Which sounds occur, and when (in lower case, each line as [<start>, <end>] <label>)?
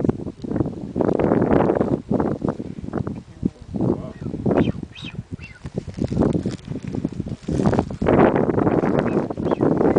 [0.00, 9.95] wind noise (microphone)
[2.56, 2.89] breathing
[3.27, 3.63] male speech
[3.88, 4.28] male speech
[4.53, 4.72] bird vocalization
[4.95, 5.14] bird vocalization
[5.39, 5.57] bird vocalization
[9.02, 9.17] bird vocalization
[9.42, 9.64] bird vocalization
[9.86, 9.95] bird vocalization